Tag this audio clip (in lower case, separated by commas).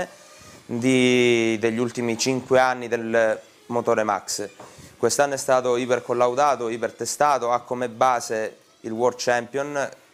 speech